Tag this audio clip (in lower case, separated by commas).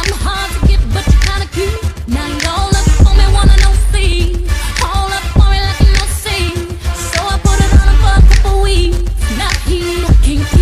music